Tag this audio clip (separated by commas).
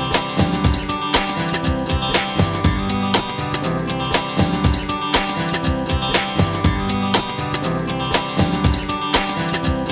Music, Theme music